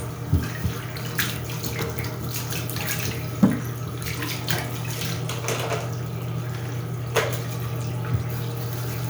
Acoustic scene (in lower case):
restroom